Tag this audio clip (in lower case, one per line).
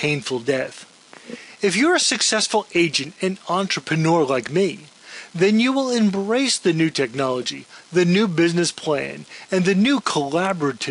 speech